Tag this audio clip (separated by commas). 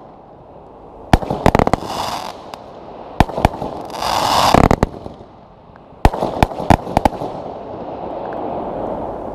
Fireworks, Firecracker